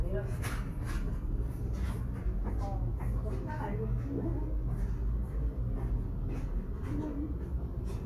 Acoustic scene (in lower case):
subway station